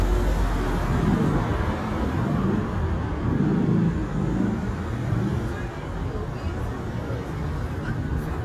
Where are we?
on a street